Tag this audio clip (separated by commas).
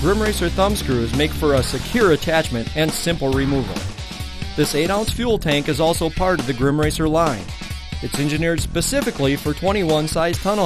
Music, Speech